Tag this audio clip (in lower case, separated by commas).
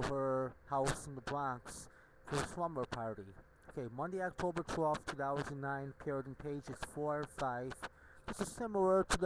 speech